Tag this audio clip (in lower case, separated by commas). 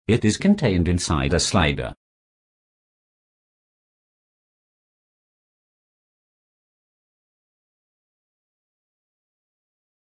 speech